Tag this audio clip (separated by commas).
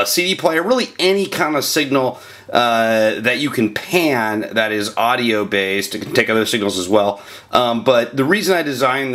Speech